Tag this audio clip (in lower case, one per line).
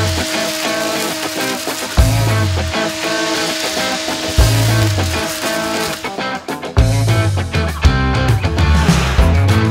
hedge trimmer running